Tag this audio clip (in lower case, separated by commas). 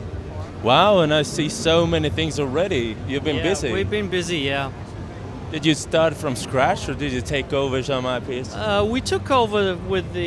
speech